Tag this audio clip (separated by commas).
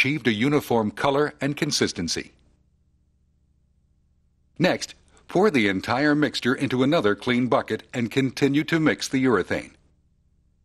Speech